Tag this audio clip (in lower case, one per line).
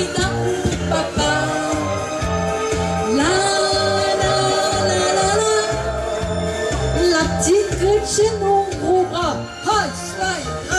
music
singing